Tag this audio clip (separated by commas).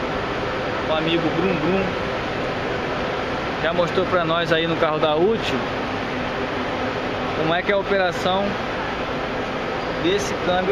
Speech